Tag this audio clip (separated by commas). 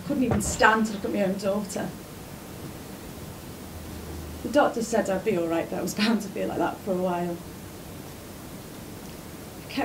Speech